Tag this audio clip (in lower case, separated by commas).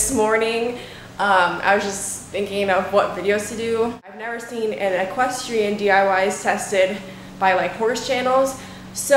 speech